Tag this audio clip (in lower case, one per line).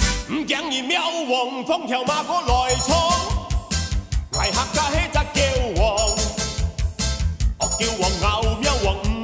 music